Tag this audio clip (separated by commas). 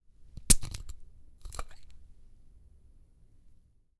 Glass